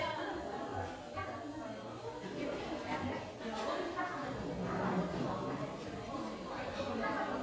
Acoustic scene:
cafe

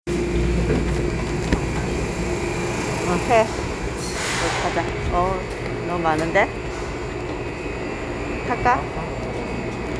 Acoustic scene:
subway station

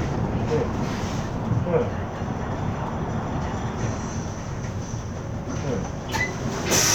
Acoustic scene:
bus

